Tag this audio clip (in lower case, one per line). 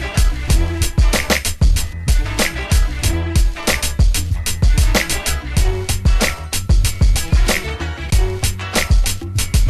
funk
music